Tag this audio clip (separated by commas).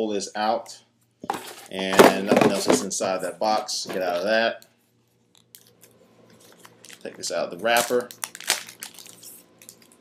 Speech, inside a small room